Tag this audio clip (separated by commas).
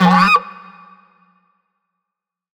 Music, Musical instrument